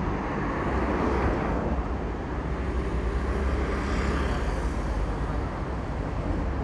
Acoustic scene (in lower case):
street